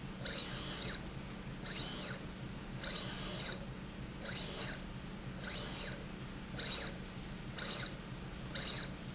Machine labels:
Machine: slide rail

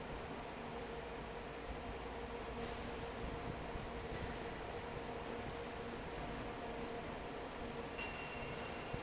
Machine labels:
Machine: fan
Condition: normal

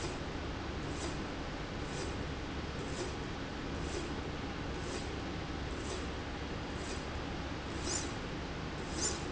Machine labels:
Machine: slide rail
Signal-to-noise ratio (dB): -6 dB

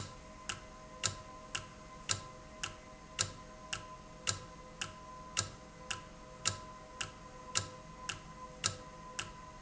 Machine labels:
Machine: valve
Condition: normal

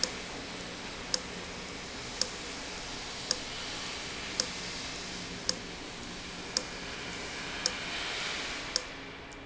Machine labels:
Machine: valve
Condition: abnormal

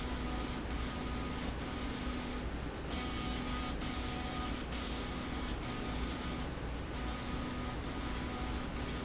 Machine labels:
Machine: slide rail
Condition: abnormal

